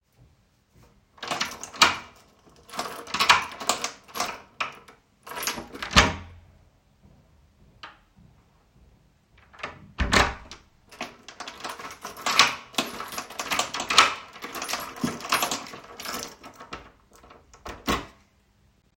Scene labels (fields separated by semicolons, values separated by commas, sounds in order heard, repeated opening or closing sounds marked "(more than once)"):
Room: hallway, kitchen; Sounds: door (more than once), keys